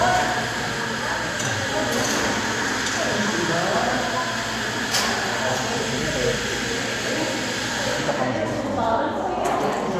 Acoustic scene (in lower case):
cafe